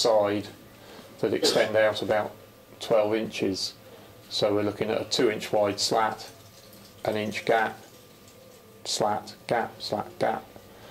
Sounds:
Speech

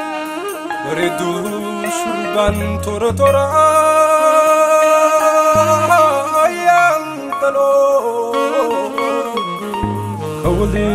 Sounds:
Music, Jazz

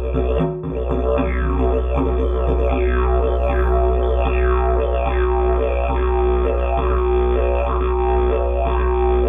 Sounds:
playing didgeridoo

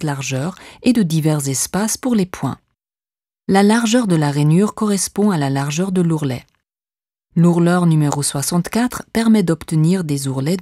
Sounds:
Speech

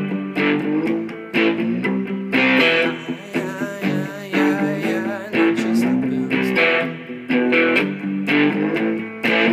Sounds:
Guitar, Electric guitar, Musical instrument, Music, Strum, Acoustic guitar

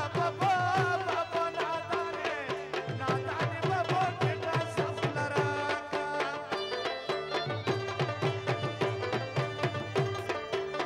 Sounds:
Folk music

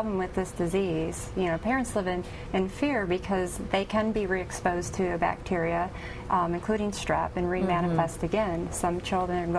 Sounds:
Speech

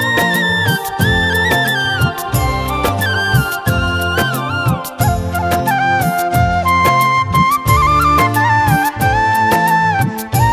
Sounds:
Music, Traditional music

